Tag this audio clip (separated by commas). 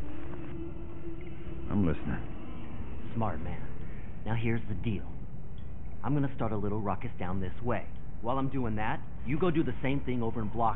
Speech